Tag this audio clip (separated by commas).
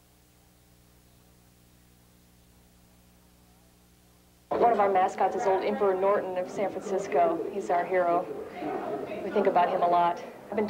Speech